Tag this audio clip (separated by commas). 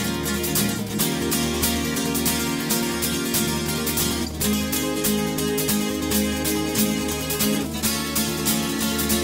Music